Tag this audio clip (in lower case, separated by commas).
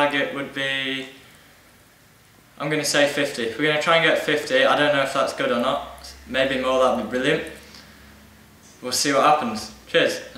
speech